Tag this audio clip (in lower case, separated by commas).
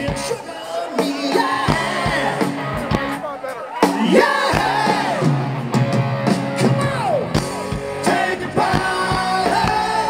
music, speech